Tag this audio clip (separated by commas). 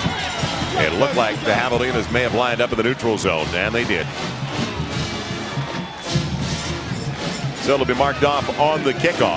Speech, Music